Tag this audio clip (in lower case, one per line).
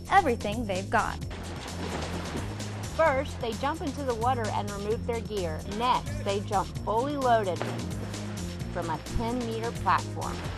speech
music